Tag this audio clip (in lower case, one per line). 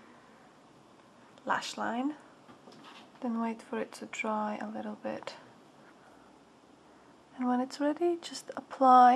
speech